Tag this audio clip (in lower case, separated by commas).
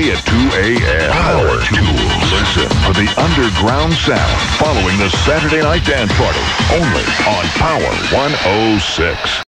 music, speech, electronic music, techno